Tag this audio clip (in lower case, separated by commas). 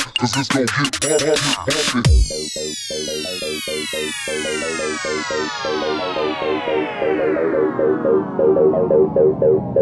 dubstep, music